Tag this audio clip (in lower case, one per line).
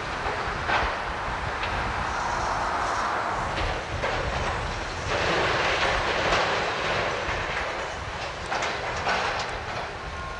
outside, rural or natural